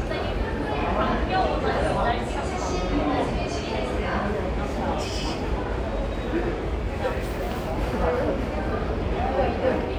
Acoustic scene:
subway station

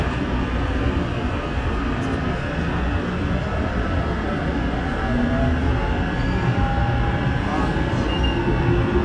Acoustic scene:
subway train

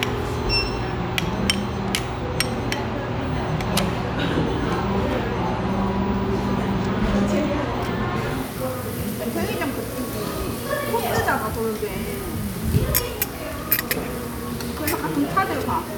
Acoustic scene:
restaurant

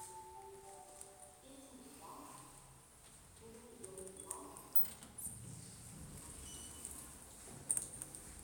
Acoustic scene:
elevator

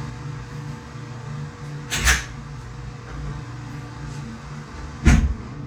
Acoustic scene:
restroom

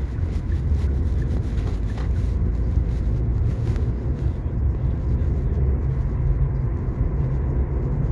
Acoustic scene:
car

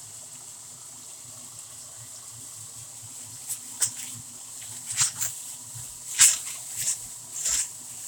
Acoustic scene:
kitchen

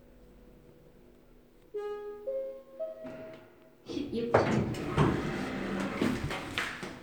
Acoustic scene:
elevator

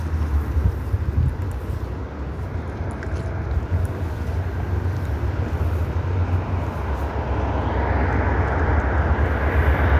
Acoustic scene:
street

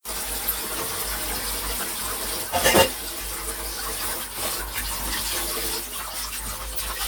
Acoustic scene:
kitchen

